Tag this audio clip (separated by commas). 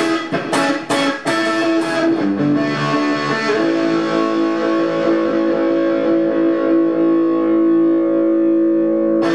Music, Guitar, Acoustic guitar, Strum, Plucked string instrument, Musical instrument